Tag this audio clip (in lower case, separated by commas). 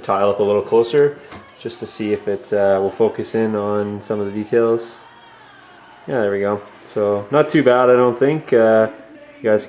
speech